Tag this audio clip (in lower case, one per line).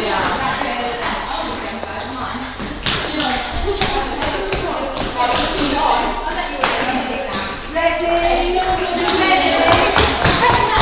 speech
tap